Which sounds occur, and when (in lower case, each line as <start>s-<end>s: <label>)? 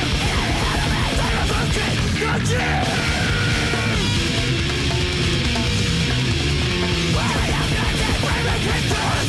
0.0s-9.2s: music
7.1s-9.2s: shout